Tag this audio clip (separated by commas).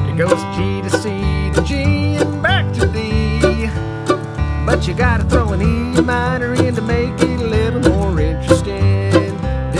playing mandolin